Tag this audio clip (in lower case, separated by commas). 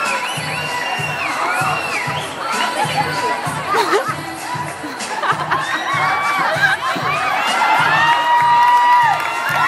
inside a public space, music, singing, speech